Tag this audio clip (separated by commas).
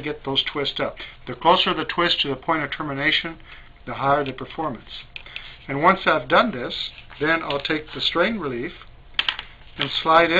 Speech, inside a small room